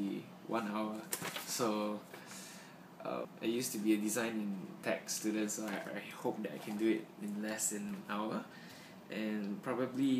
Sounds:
speech

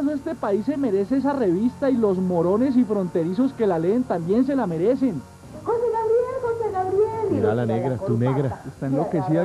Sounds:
speech
television

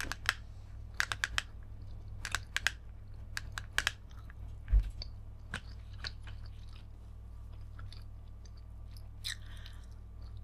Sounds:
chewing

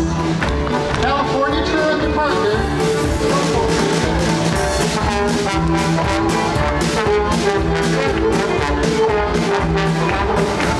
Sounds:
music
speech

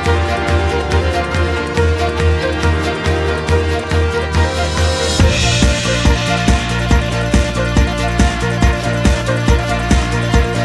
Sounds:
music

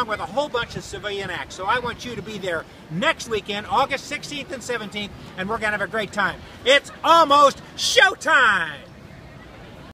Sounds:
speech

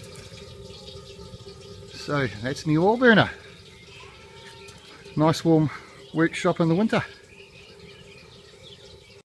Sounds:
speech

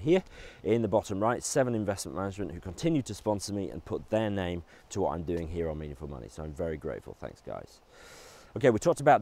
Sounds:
speech

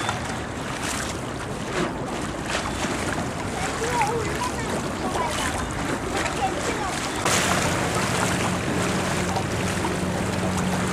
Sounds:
speech
outside, urban or man-made
slosh

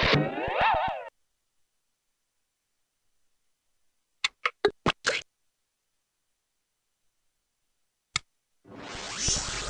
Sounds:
silence
music

